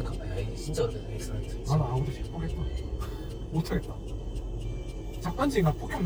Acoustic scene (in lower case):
car